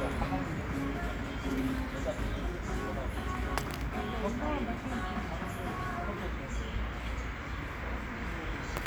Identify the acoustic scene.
residential area